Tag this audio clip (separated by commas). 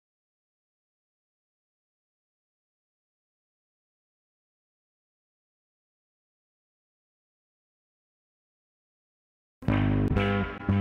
Music, Silence